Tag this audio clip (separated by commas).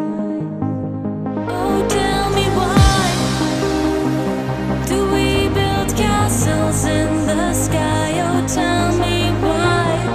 Music